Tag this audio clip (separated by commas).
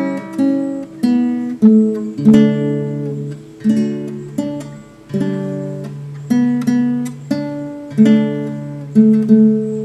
Music, Musical instrument, Guitar